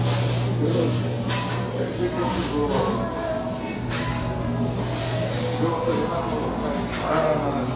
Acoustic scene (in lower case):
cafe